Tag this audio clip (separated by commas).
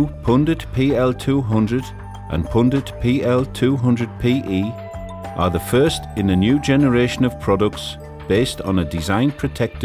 Music, Speech